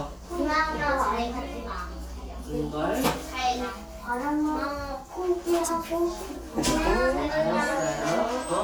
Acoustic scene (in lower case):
crowded indoor space